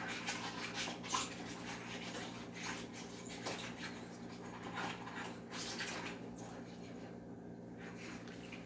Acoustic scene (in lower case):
kitchen